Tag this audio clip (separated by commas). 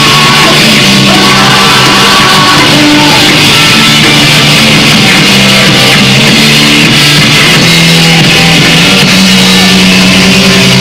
Music, Roll